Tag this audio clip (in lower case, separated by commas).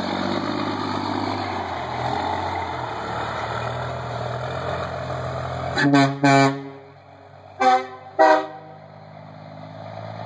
medium engine (mid frequency), truck, car horn, vehicle, toot